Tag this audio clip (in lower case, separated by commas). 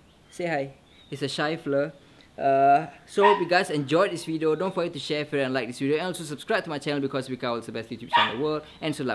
animal, dog, outside, urban or man-made, domestic animals, speech